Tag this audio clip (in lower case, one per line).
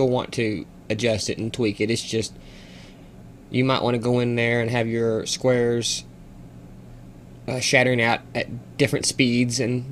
speech